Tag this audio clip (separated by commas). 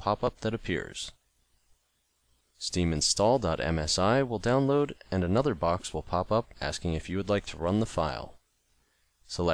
Speech